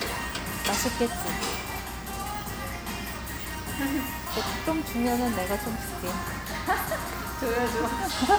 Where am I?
in a restaurant